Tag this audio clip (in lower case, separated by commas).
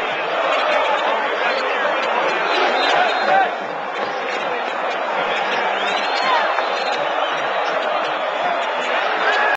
crowd, speech